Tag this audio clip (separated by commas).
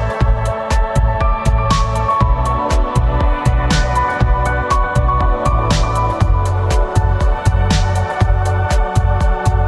Music